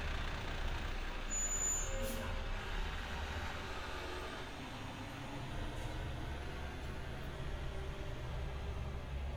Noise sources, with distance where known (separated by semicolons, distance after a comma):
large-sounding engine, near